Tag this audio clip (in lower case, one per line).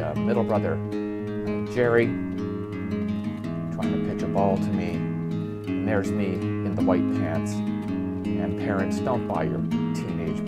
speech
music